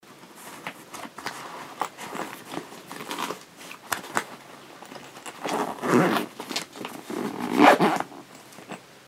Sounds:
home sounds, Zipper (clothing)

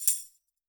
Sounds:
Tambourine, Music, Percussion, Musical instrument

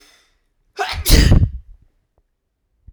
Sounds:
Sneeze, Respiratory sounds

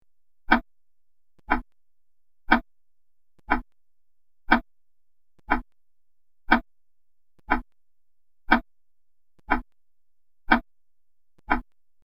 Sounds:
Mechanisms, Tick-tock, Clock

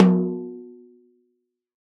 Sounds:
Drum, Music, Snare drum, Percussion, Musical instrument

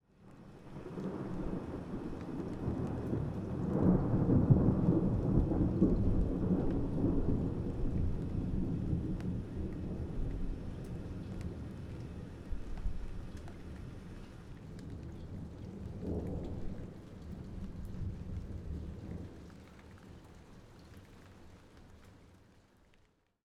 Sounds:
Thunderstorm, Thunder

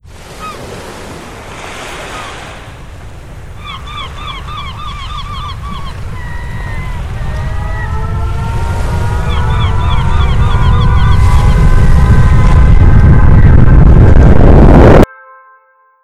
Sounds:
Bird, Water, Animal, Waves, Wild animals, Ocean, Alarm, Siren, seagull

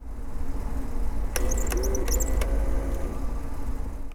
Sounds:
Printer, Mechanisms

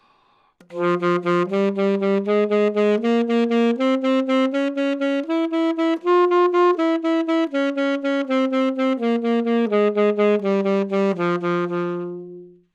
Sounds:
Musical instrument, woodwind instrument, Music

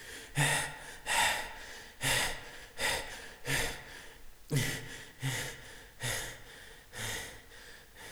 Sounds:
Human voice, Breathing, Respiratory sounds

